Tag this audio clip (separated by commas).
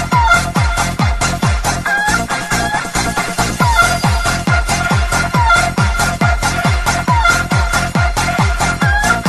Cluck, Music